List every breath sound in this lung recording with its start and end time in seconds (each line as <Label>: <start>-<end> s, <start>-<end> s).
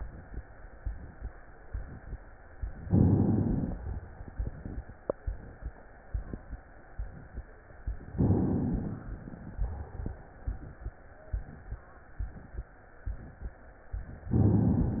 Inhalation: 2.87-3.72 s, 8.14-8.99 s, 14.31-15.00 s